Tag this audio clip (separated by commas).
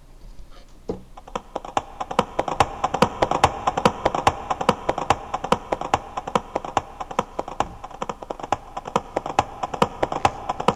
horse clip-clop